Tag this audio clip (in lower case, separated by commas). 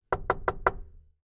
knock, door, home sounds